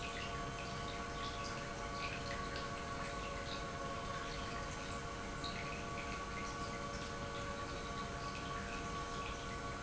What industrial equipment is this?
pump